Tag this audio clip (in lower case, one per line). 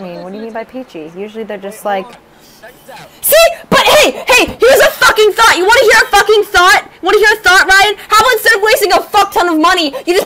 speech